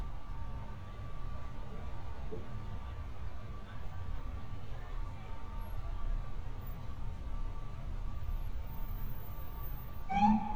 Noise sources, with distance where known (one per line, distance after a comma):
unidentified alert signal, near